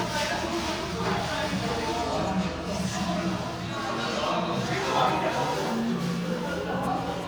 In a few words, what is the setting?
crowded indoor space